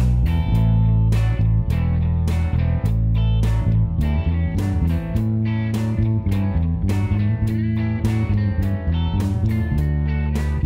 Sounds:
Musical instrument, Music, slide guitar

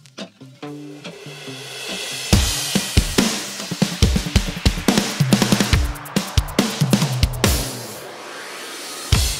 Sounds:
Music

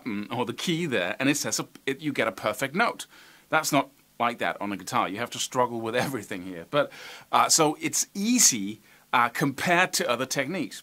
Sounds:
Speech

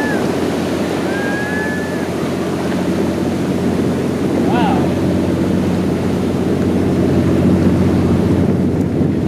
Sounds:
Speech, Ocean, Ship, ocean burbling, Vehicle, Boat

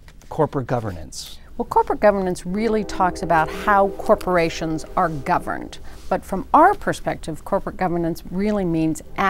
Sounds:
Speech, Music

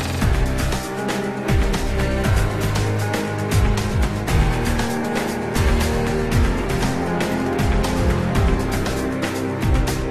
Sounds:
Music

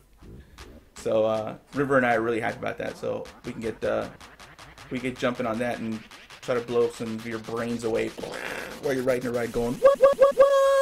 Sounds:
Speech, Music, inside a small room

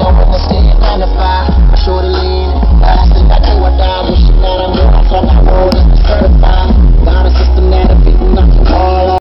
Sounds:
Music, Vehicle

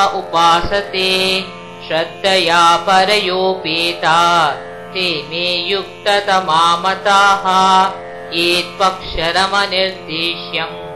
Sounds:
Music, Mantra

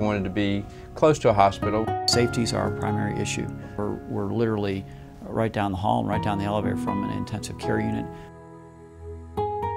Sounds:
Lullaby

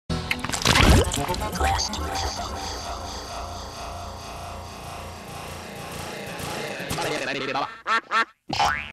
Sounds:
Animal, Music

